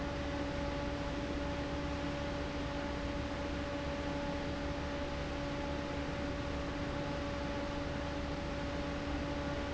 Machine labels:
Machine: fan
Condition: abnormal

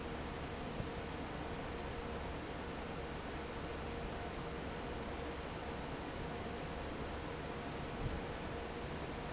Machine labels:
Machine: fan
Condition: normal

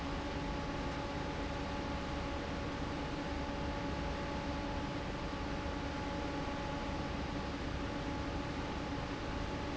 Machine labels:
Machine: fan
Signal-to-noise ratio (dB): -6 dB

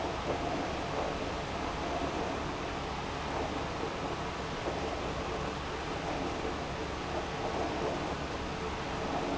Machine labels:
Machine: pump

